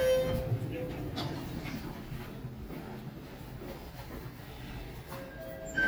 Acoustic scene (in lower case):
elevator